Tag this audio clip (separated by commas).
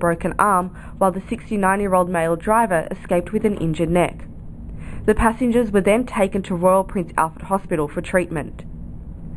Speech